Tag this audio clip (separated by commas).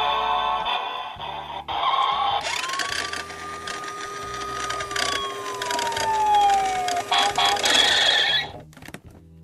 fire truck siren